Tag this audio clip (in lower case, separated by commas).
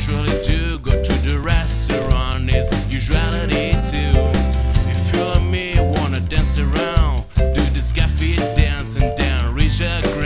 music, happy music